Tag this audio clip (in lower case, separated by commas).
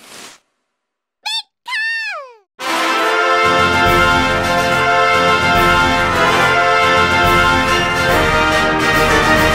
speech, music